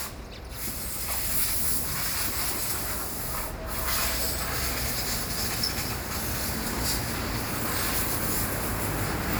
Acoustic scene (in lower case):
street